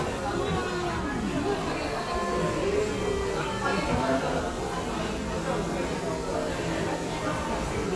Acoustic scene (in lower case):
crowded indoor space